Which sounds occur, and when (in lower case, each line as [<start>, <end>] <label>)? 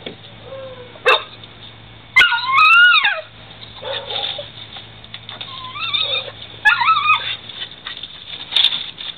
[0.00, 9.15] mechanisms
[0.00, 9.15] wind
[0.03, 0.27] generic impact sounds
[0.38, 0.96] dog
[0.55, 0.66] generic impact sounds
[0.91, 0.98] generic impact sounds
[1.02, 1.26] bark
[1.37, 1.73] generic impact sounds
[2.13, 3.23] yip
[3.79, 4.28] bark
[4.72, 4.79] generic impact sounds
[5.01, 6.31] generic impact sounds
[5.46, 6.28] yip
[6.50, 7.65] generic impact sounds
[6.63, 7.20] yip
[7.11, 7.35] dog
[7.46, 7.65] dog
[7.79, 9.15] generic impact sounds
[7.82, 7.96] dog